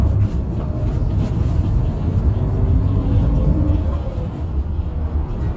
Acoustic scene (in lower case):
bus